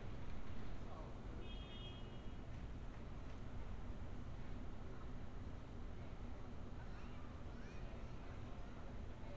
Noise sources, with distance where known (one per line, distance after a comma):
background noise